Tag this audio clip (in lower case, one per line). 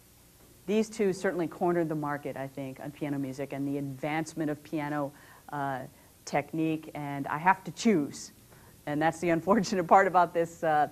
speech